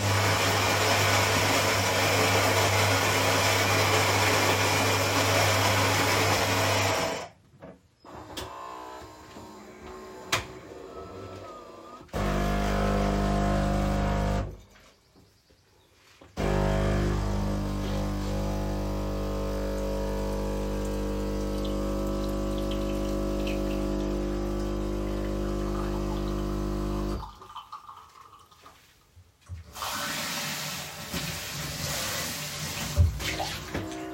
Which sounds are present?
coffee machine, running water